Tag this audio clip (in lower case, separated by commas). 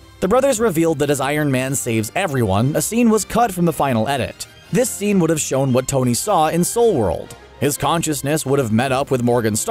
people finger snapping